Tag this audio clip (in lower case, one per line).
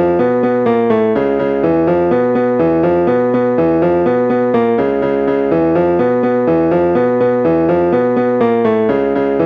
theme music
music
video game music